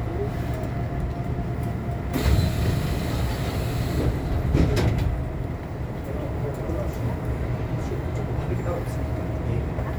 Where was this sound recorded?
on a subway train